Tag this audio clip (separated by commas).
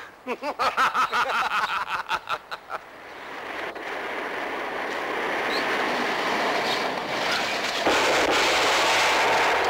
gunfire